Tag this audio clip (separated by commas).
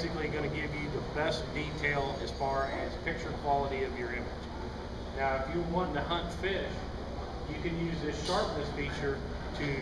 Speech